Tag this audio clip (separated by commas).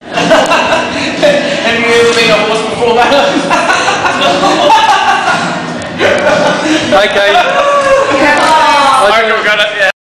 Speech, inside a large room or hall, Music